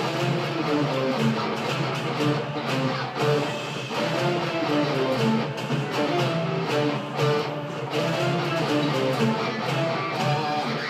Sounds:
plucked string instrument
guitar
electric guitar
strum
musical instrument
music

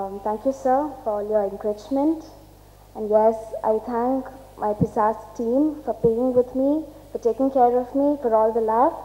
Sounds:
narration
female speech
speech

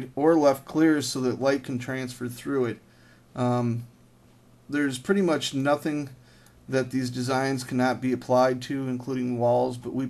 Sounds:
speech

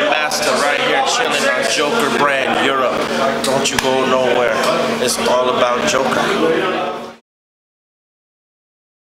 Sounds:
speech

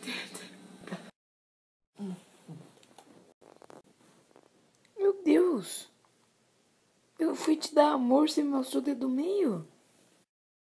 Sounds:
speech

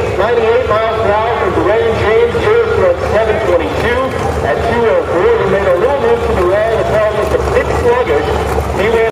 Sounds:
speech

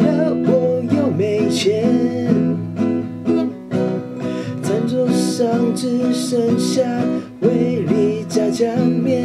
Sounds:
plucked string instrument
electric guitar
guitar
acoustic guitar
musical instrument
strum
music

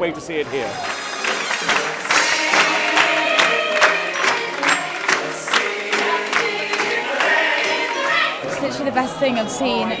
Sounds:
speech
music

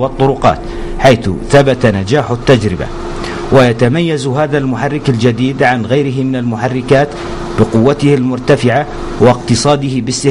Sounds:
heavy engine (low frequency)
speech

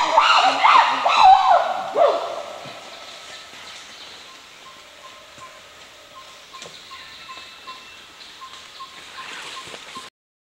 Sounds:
chimpanzee pant-hooting

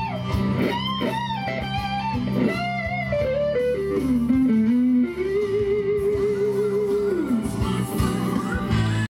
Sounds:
plucked string instrument
music
musical instrument
strum
guitar
electric guitar

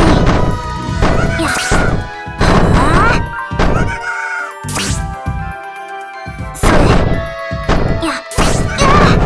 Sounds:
smash
music
speech

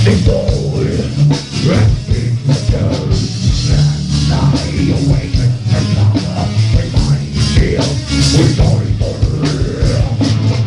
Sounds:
singing
music

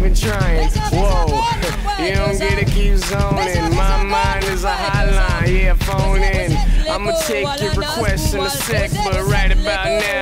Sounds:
exciting music
music

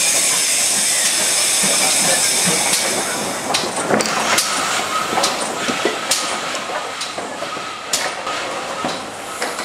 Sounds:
rail transport
clickety-clack
train wagon
train

